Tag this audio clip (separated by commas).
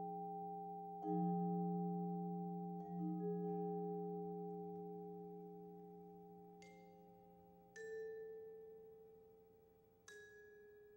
Marimba, Music, Vibraphone